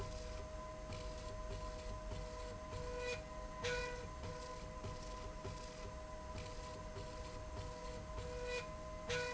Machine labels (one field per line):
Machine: slide rail